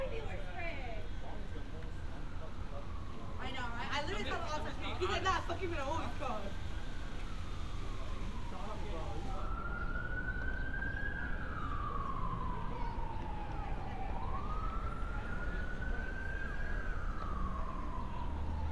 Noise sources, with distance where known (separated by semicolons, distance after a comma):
siren; person or small group talking, near